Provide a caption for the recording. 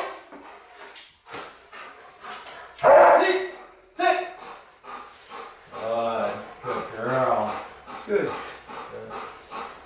Thumping and clicking occur, a dog pants, a dog barks, and an adult male speaks